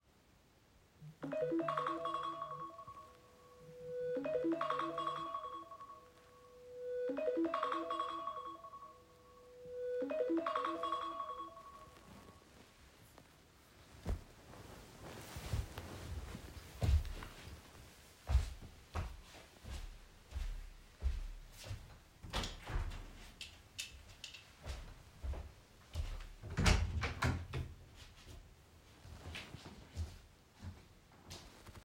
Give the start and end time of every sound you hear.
[1.12, 12.39] phone ringing
[16.74, 22.27] footsteps
[22.27, 23.76] window
[24.52, 26.54] footsteps
[26.48, 27.95] door
[28.96, 31.85] footsteps

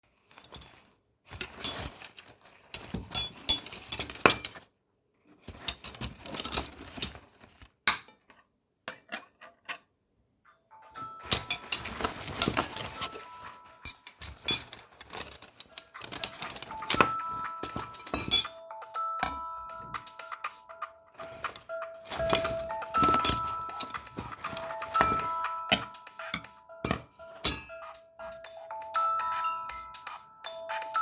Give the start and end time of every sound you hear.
[0.00, 19.80] cutlery and dishes
[10.72, 31.02] phone ringing
[21.14, 28.17] cutlery and dishes

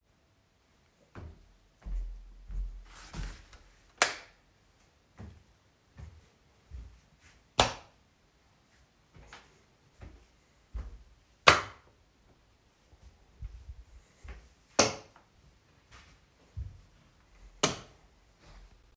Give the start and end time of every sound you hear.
[0.97, 3.47] footsteps
[3.92, 4.28] light switch
[4.96, 7.02] footsteps
[7.52, 7.92] light switch
[9.04, 10.98] footsteps
[11.38, 11.83] light switch
[13.21, 14.51] footsteps
[14.74, 15.13] light switch
[15.86, 16.89] footsteps
[17.61, 17.89] light switch

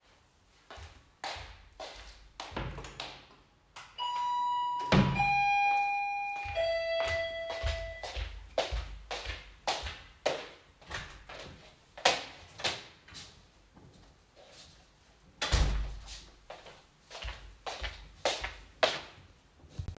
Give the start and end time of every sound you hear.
[0.63, 3.27] footsteps
[2.55, 2.97] wardrobe or drawer
[3.86, 8.11] bell ringing
[7.54, 10.88] footsteps
[11.99, 13.10] footsteps
[17.14, 19.08] footsteps

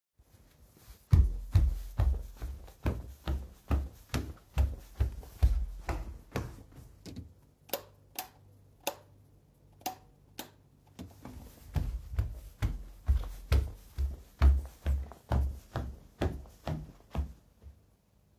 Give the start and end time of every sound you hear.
[0.99, 7.26] footsteps
[7.45, 10.79] light switch
[11.62, 17.60] footsteps

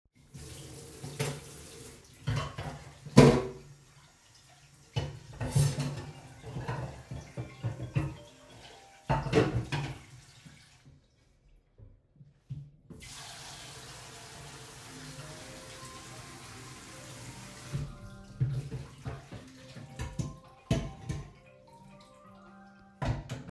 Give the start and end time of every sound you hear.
[0.31, 11.08] running water
[0.94, 3.92] cutlery and dishes
[4.88, 10.05] cutlery and dishes
[5.54, 9.19] phone ringing
[12.85, 18.47] running water
[14.99, 23.51] phone ringing
[18.29, 23.51] cutlery and dishes

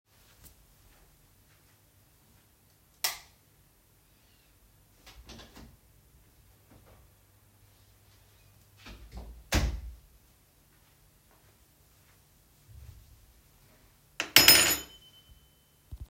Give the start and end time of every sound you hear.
[2.95, 3.36] light switch
[5.04, 5.70] door
[8.78, 10.12] door
[14.15, 15.60] keys

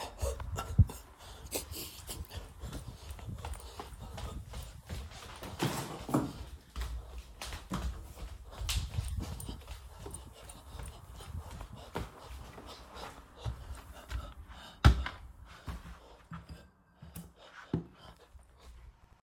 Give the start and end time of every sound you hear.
[1.97, 17.90] footsteps

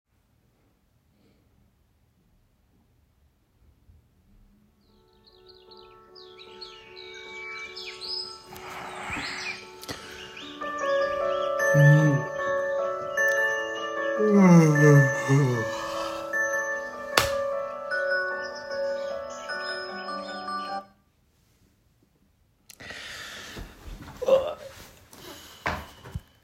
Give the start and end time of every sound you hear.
[4.81, 20.90] phone ringing
[17.05, 17.41] light switch

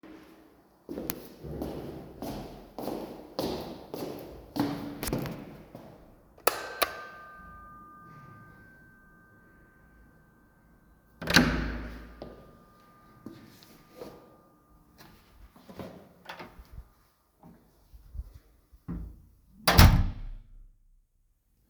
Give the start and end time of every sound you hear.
[0.66, 6.14] footsteps
[6.35, 10.10] bell ringing
[11.13, 12.36] door
[13.03, 14.35] footsteps
[15.59, 16.16] footsteps
[19.49, 20.34] door

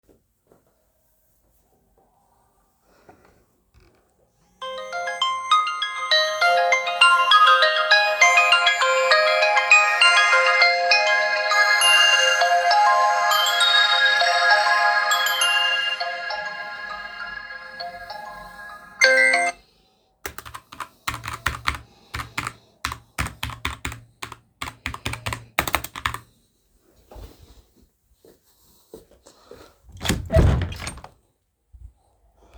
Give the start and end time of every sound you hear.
[4.53, 19.61] phone ringing
[20.18, 26.29] keyboard typing
[28.18, 29.94] footsteps
[29.94, 31.20] door

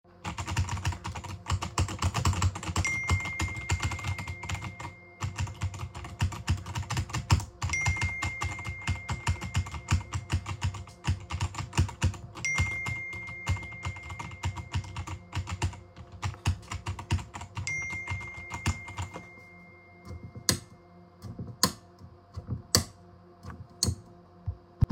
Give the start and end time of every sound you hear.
[0.26, 19.37] keyboard typing
[2.87, 5.24] phone ringing
[7.67, 10.30] phone ringing
[12.36, 15.45] phone ringing
[17.66, 20.57] phone ringing
[20.00, 24.12] light switch

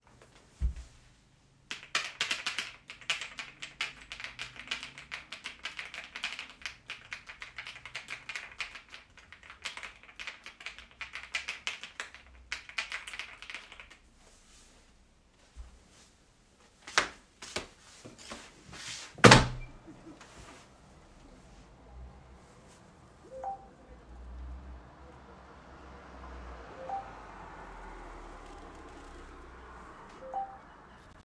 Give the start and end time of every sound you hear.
[1.56, 14.10] keyboard typing
[16.71, 17.98] footsteps
[18.70, 20.02] window
[23.19, 30.63] phone ringing

